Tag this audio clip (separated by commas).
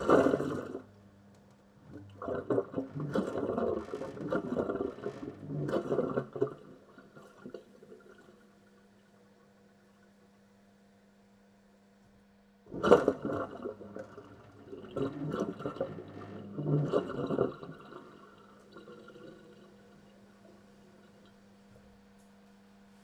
home sounds, Sink (filling or washing)